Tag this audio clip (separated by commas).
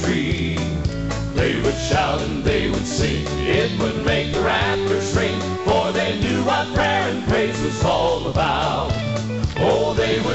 Music